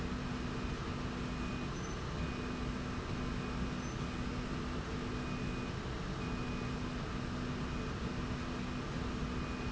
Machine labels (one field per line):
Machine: slide rail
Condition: normal